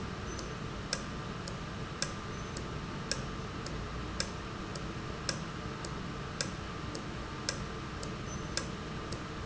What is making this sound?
valve